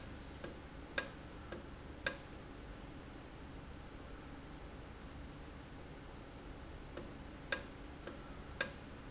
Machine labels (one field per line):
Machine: valve